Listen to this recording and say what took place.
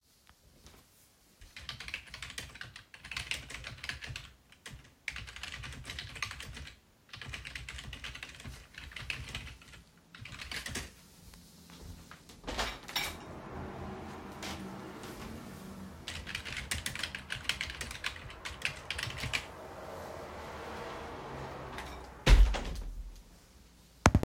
I was sitting at my desk typing on the keyboard. I paused to get up and open the window then returned and continued typing. After a while I got up again and closed the window.